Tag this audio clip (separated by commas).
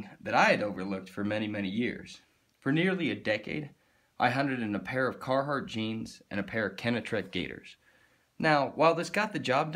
Speech